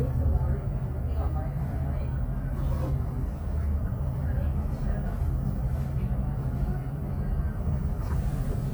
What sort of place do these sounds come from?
bus